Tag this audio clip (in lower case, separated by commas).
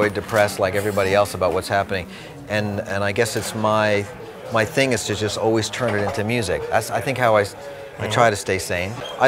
speech